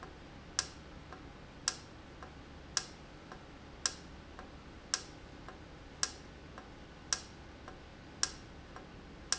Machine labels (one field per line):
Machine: valve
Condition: normal